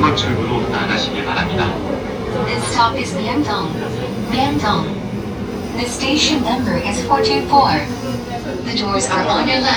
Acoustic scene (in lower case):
subway train